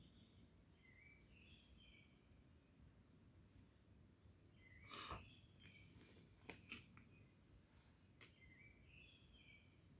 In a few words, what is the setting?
park